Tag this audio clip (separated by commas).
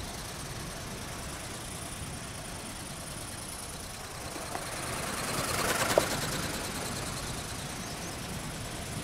bird wings flapping